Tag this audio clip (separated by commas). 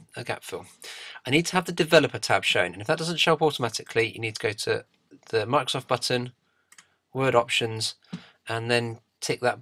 Speech